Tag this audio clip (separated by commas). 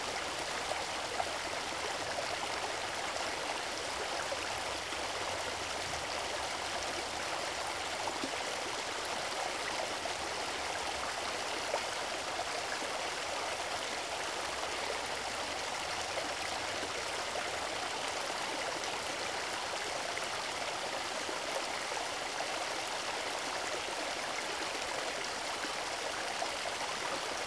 Stream, Water